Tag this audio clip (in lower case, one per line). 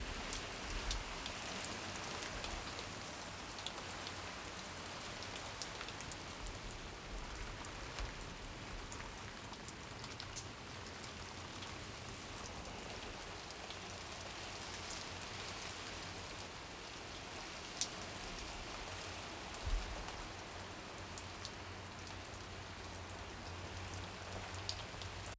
rain
water